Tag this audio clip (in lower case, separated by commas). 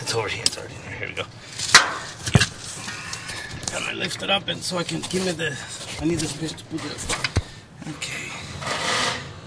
speech